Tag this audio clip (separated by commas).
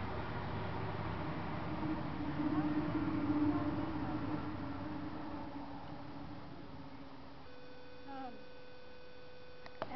Speech